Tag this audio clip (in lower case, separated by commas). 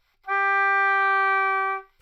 musical instrument, woodwind instrument, music